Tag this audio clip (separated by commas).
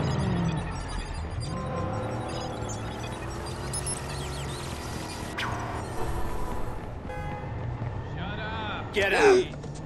Speech